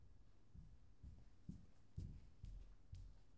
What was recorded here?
footsteps